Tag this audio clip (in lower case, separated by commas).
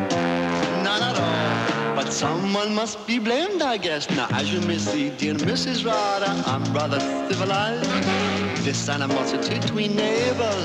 rock and roll, music